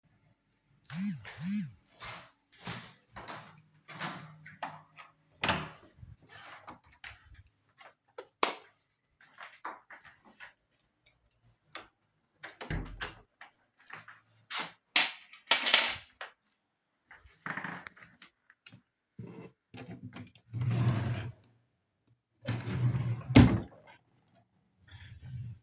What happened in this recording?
I walked down the hallway, opened my bedroom door and entered. I then turned on the light, kept my keys on the table and closed the door. Then I went over to my drawer, opened it, kept my wallet inside and closed it.